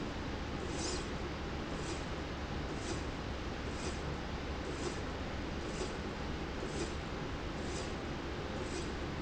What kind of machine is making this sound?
slide rail